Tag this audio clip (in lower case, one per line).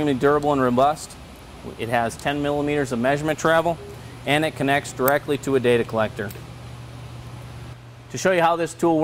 speech